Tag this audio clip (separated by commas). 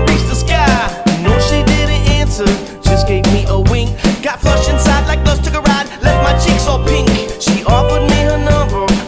Music, Soul music